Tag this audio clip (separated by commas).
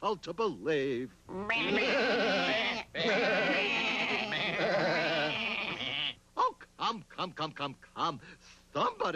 Sheep, Speech